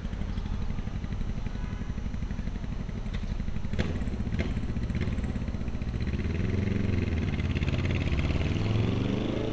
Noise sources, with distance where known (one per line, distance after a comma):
medium-sounding engine, near